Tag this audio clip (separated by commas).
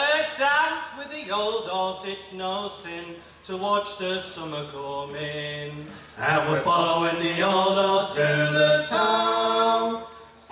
Speech, Singing